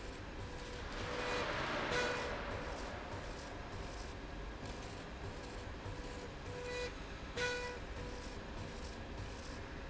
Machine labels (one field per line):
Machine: slide rail